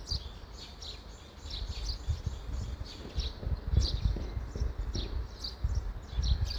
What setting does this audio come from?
park